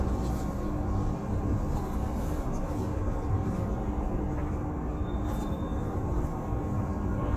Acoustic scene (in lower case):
bus